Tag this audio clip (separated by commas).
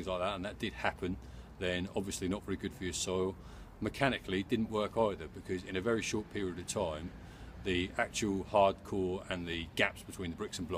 Speech